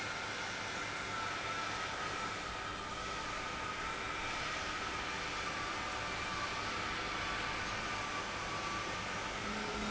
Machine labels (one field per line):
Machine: pump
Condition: abnormal